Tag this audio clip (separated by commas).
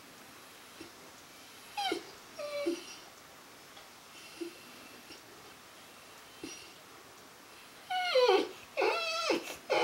Domestic animals, Whimper (dog), Animal, Dog